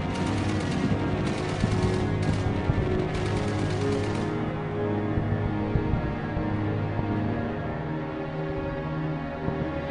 A music is played